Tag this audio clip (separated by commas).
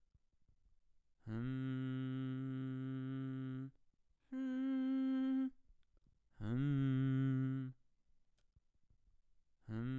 Singing, Human voice